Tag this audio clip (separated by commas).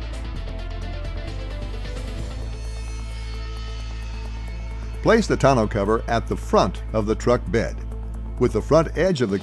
Speech, Music